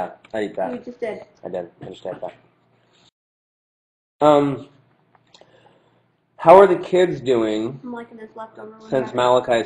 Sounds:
Speech

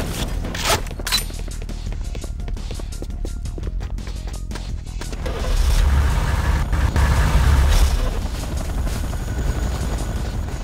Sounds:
Music

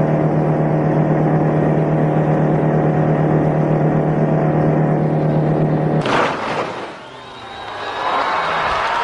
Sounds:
Car, Vehicle

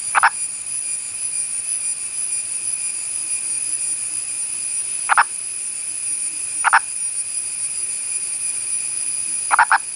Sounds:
Frog

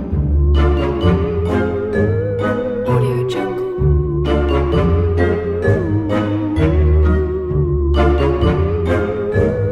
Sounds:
Speech, Music

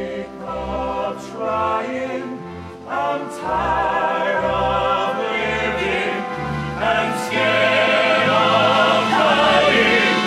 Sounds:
Music

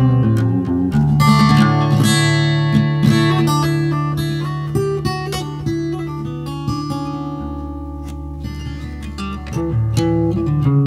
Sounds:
Plucked string instrument, Music, Musical instrument, Guitar, Acoustic guitar, Electric guitar

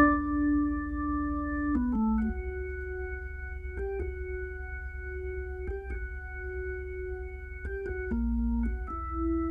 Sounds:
playing piano, inside a large room or hall, Keyboard (musical), Piano, Music

